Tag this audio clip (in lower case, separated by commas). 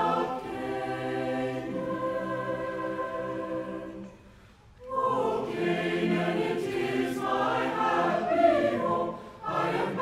gospel music, music